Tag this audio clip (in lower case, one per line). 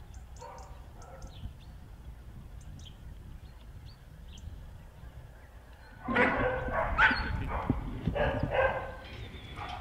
speech
dog bow-wow
bow-wow